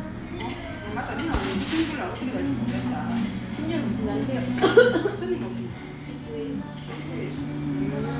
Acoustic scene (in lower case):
restaurant